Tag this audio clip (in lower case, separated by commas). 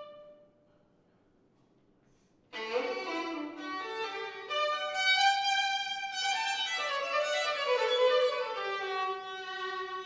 music, musical instrument, fiddle